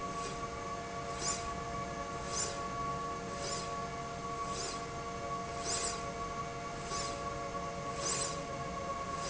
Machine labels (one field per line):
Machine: slide rail